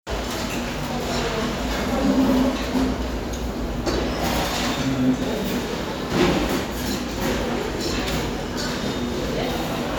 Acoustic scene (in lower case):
restaurant